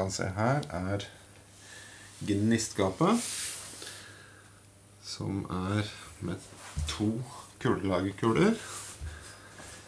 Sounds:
inside a large room or hall
speech

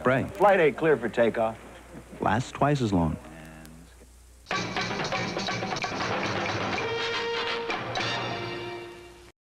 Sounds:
speech
music

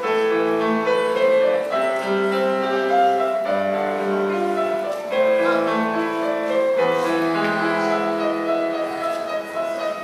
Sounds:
music

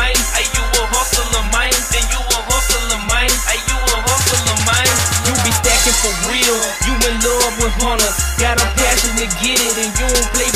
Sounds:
music

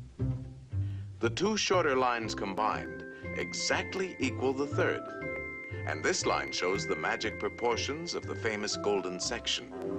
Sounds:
speech
music

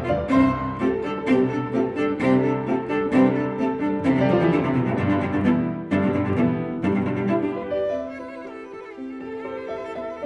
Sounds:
bowed string instrument
cello

